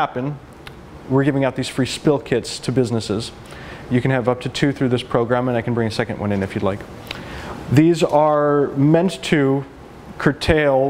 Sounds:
Speech

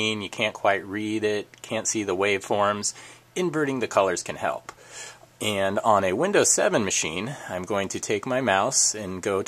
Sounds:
Speech

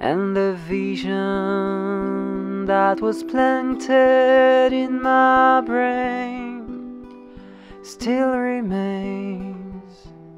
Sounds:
Music

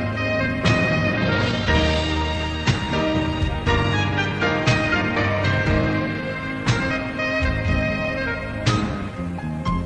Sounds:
Music

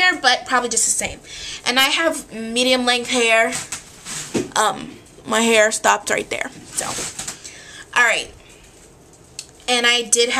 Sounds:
Speech

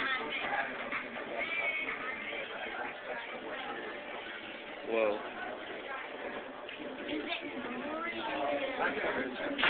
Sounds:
Speech

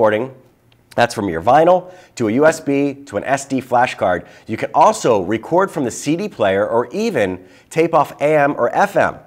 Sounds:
Speech

